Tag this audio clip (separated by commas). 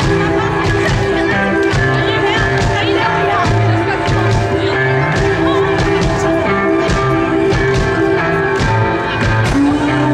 Speech, Music